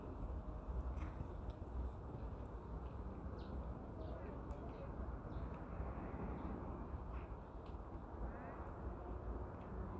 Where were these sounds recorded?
in a residential area